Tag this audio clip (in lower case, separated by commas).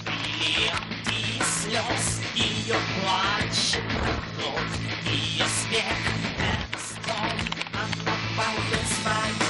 music